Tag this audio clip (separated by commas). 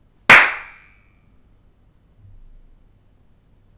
Hands, Clapping